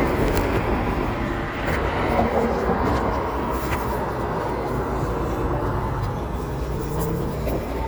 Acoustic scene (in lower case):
residential area